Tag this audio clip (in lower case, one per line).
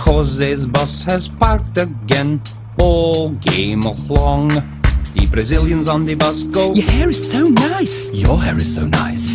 vehicle
music